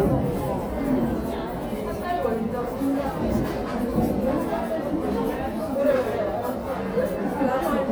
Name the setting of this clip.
crowded indoor space